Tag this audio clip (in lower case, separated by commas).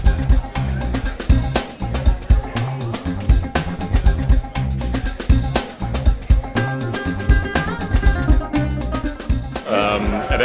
music, speech